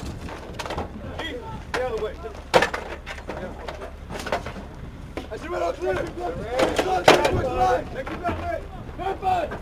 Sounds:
speech

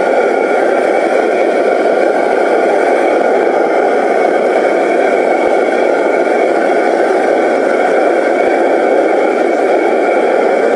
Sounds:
blowtorch igniting

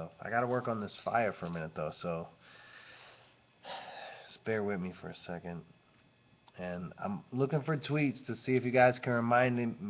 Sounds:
speech

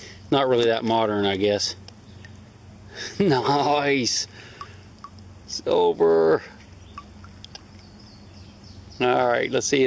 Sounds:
speech
outside, rural or natural

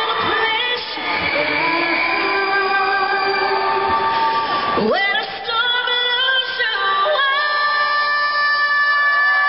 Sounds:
singing

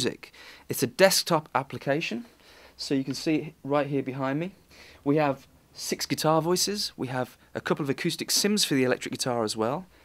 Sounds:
speech

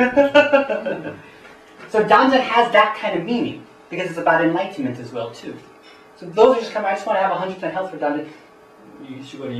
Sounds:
speech

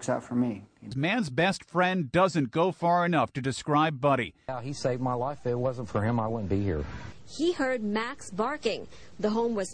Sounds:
speech

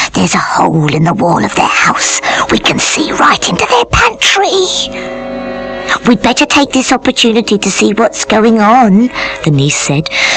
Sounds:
speech
music

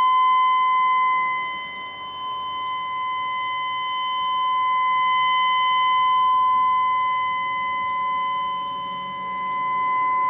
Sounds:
siren

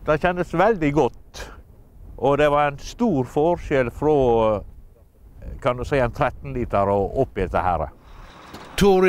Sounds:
truck
speech
vehicle

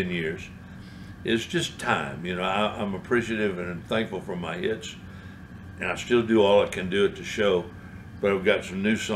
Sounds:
speech

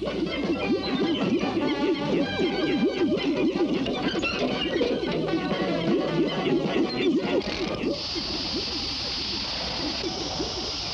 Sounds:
music

